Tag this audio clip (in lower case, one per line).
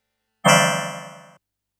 musical instrument
keyboard (musical)
music